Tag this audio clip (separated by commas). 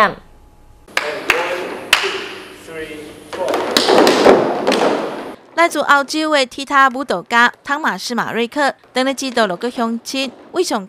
tap dancing